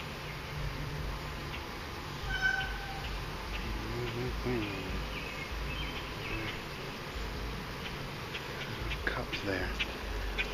A person mumbling as birds sing and fly by